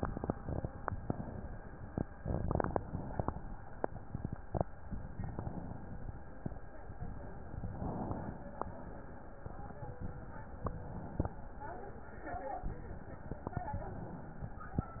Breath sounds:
Inhalation: 1.00-1.95 s, 2.79-3.74 s, 5.08-6.02 s, 7.67-8.62 s, 10.41-11.36 s, 13.60-14.55 s

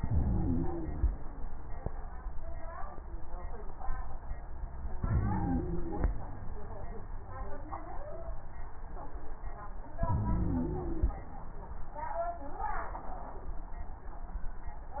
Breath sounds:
Inhalation: 0.00-1.00 s, 5.05-6.06 s, 10.07-11.13 s
Wheeze: 0.00-1.00 s, 5.05-6.06 s, 10.07-11.13 s

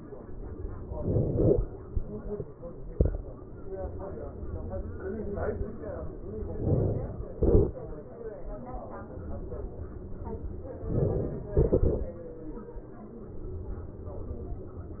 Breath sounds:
Inhalation: 0.86-1.65 s, 6.60-7.28 s, 10.85-11.52 s
Exhalation: 7.28-8.30 s, 11.52-12.73 s

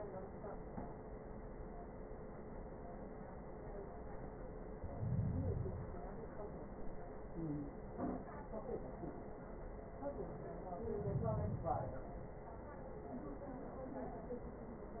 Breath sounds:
Inhalation: 4.63-6.13 s, 10.74-12.24 s

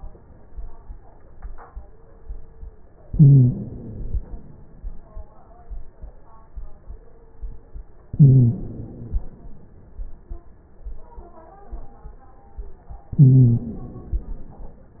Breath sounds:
Inhalation: 3.07-4.57 s, 8.12-9.38 s, 13.18-14.94 s
Stridor: 3.07-3.84 s, 8.12-8.98 s, 13.18-14.04 s

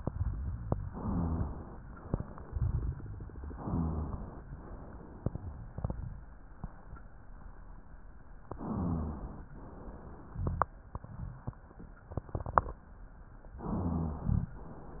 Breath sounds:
Inhalation: 0.77-1.78 s, 3.58-4.42 s, 8.46-9.46 s, 13.55-14.56 s
Exhalation: 9.54-10.75 s
Rhonchi: 0.87-1.52 s, 3.56-4.21 s, 8.46-9.46 s, 13.55-14.56 s

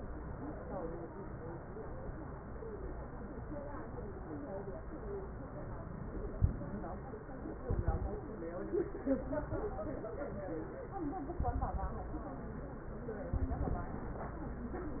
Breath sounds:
Inhalation: 6.05-6.83 s
Exhalation: 7.67-8.18 s, 11.41-12.25 s, 13.38-13.93 s
Crackles: 7.67-8.18 s, 11.41-12.25 s, 13.38-13.93 s

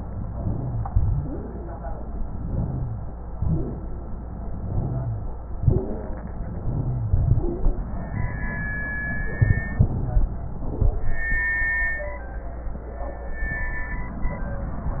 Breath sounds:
Inhalation: 0.12-0.88 s, 2.20-3.17 s, 4.42-5.26 s, 6.43-7.10 s, 9.43-10.34 s
Exhalation: 0.85-1.31 s, 3.36-3.99 s, 5.64-6.26 s, 7.13-7.89 s
Wheeze: 0.34-0.80 s, 0.85-1.31 s, 2.41-3.17 s, 3.36-3.99 s, 4.63-5.26 s, 5.64-6.26 s, 6.60-7.10 s, 7.36-7.63 s, 9.83-10.34 s

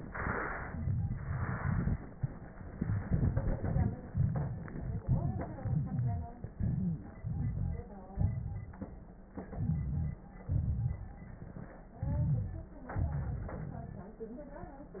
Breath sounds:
Inhalation: 7.16-8.07 s, 9.43-10.26 s, 11.94-12.81 s
Exhalation: 8.08-9.31 s, 10.29-11.73 s, 12.80-14.16 s
Wheeze: 5.63-6.42 s, 6.58-6.99 s, 12.00-12.81 s
Crackles: 7.16-8.07 s, 8.08-9.31 s, 9.43-10.26 s, 10.29-11.73 s, 12.80-14.16 s

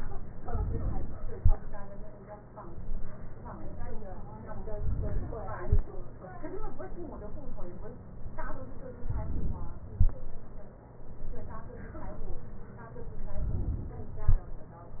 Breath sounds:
Inhalation: 4.74-5.61 s, 9.12-9.91 s, 13.53-14.26 s

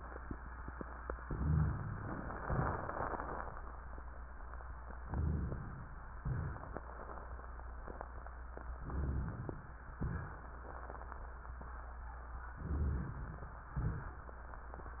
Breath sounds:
Inhalation: 1.22-1.97 s, 4.99-5.96 s, 8.77-9.78 s, 12.61-13.58 s
Exhalation: 2.46-3.54 s, 6.22-7.52 s, 10.01-11.30 s, 13.77-14.42 s
Crackles: 2.46-3.54 s, 6.22-7.52 s, 10.01-11.30 s

